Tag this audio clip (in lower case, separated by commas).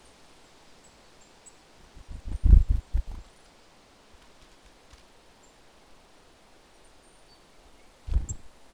bird, wind, animal, wild animals